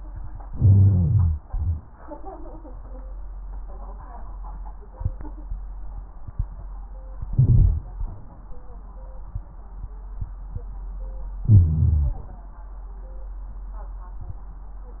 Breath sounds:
Inhalation: 0.44-1.36 s, 7.27-7.87 s, 11.39-12.22 s
Exhalation: 1.39-1.85 s
Wheeze: 0.45-1.32 s, 11.41-12.22 s

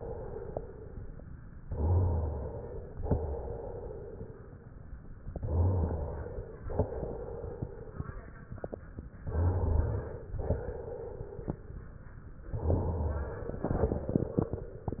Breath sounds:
Inhalation: 1.63-3.00 s, 5.29-6.66 s, 9.26-10.40 s, 12.50-13.64 s
Exhalation: 0.00-1.51 s, 3.06-4.75 s, 6.70-8.40 s, 10.34-11.70 s, 13.64-15.00 s
Rhonchi: 1.67-2.53 s, 5.41-6.27 s, 9.33-10.20 s, 12.62-13.48 s

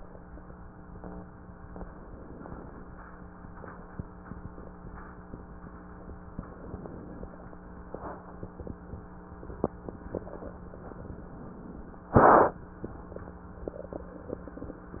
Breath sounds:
Inhalation: 1.66-2.94 s, 6.27-7.55 s, 10.73-12.01 s

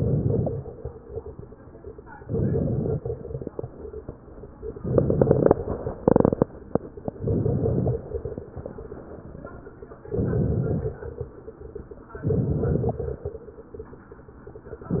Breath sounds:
Inhalation: 0.00-0.57 s, 2.26-3.08 s, 4.82-5.64 s, 7.23-8.05 s, 10.07-11.04 s, 12.24-13.07 s
Crackles: 0.00-0.57 s, 2.26-3.08 s, 4.82-5.64 s, 7.23-8.05 s, 10.07-11.04 s, 12.24-13.07 s

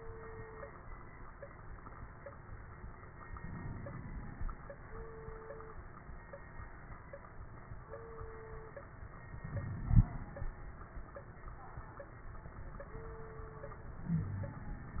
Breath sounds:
Inhalation: 3.33-4.46 s, 9.47-10.50 s, 14.06-15.00 s
Wheeze: 14.06-14.66 s
Crackles: 9.47-10.50 s

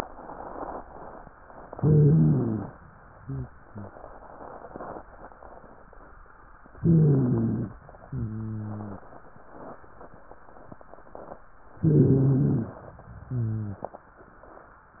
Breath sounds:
Inhalation: 1.72-2.72 s, 6.76-7.76 s, 11.82-12.82 s
Exhalation: 3.20-3.94 s, 8.06-9.06 s, 13.26-13.88 s
Stridor: 1.72-2.72 s, 3.20-3.50 s, 3.64-3.94 s, 6.76-7.76 s, 8.06-9.06 s, 11.82-12.82 s, 13.24-13.86 s

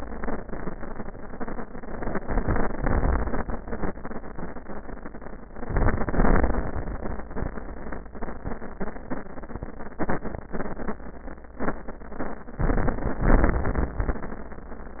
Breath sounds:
Inhalation: 2.21-3.90 s, 5.58-6.71 s, 12.60-13.23 s
Exhalation: 13.23-14.23 s

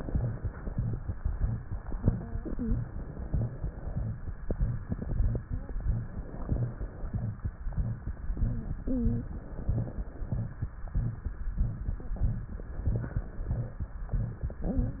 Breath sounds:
Inhalation: 2.79-4.08 s, 5.77-7.29 s, 9.32-10.46 s, 12.70-13.83 s
Wheeze: 2.49-2.83 s, 5.43-5.77 s, 8.84-9.30 s

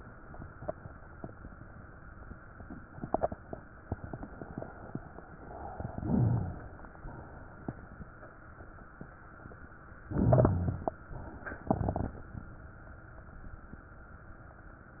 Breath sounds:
Inhalation: 5.96-6.95 s, 10.11-10.95 s
Exhalation: 6.95-8.06 s, 11.72-12.55 s
Rhonchi: 6.00-6.53 s, 10.13-10.88 s

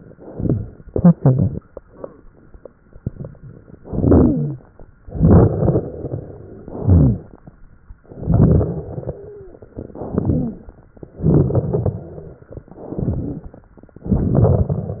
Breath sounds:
Inhalation: 3.78-4.60 s, 6.62-7.42 s, 9.92-10.84 s, 12.68-13.66 s, 14.06-15.00 s
Exhalation: 5.02-6.60 s, 8.06-9.94 s, 11.00-12.64 s
Wheeze: 3.88-4.56 s, 8.98-9.64 s, 10.16-10.60 s, 13.08-13.46 s
Rhonchi: 6.80-7.20 s
Crackles: 5.08-5.82 s, 11.16-12.04 s, 14.06-15.00 s

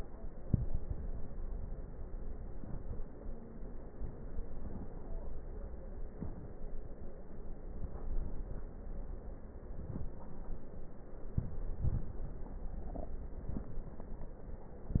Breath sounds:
Inhalation: 0.37-1.31 s, 2.53-3.21 s, 6.05-6.73 s, 9.61-10.30 s, 11.17-11.73 s, 13.38-13.99 s
Exhalation: 11.73-12.49 s
Crackles: 0.37-1.31 s, 9.61-10.30 s, 11.73-12.49 s, 13.38-13.99 s

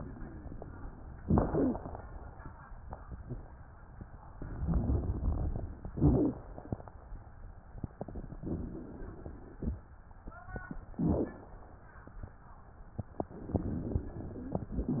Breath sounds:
Inhalation: 1.16-2.05 s, 5.90-6.79 s, 10.93-11.50 s, 13.30-14.74 s
Exhalation: 4.40-5.84 s, 8.33-9.77 s
Wheeze: 1.16-2.05 s, 5.90-6.79 s, 10.93-11.50 s
Crackles: 4.40-5.84 s, 8.33-9.77 s, 13.30-14.74 s

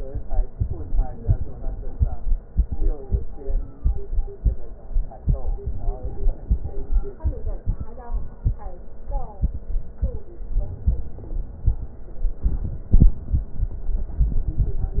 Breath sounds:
Inhalation: 5.80-7.24 s, 10.53-11.83 s

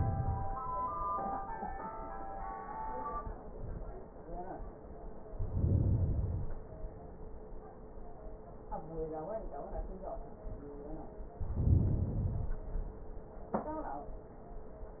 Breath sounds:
Inhalation: 5.25-6.75 s, 11.29-12.79 s

